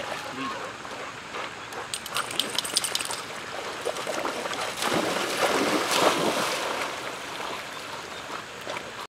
Splashing a gurgling in a stream of water